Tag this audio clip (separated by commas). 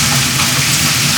Rain, Water